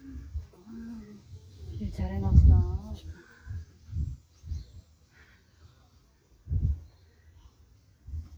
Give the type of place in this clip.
park